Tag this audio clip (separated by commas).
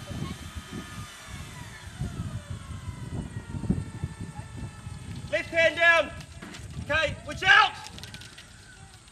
Speech